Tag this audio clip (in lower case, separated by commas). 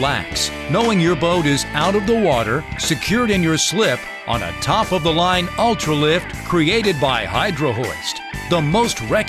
speech, music